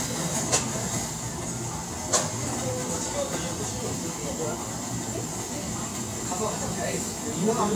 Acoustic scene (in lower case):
cafe